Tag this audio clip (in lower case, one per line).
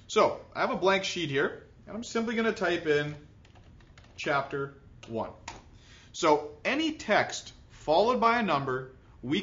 speech